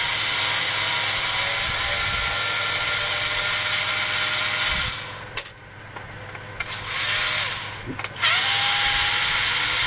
Hissing and vibrations from a power tool